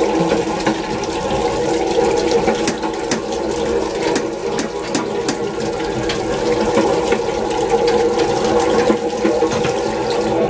Water in a toilet during a flush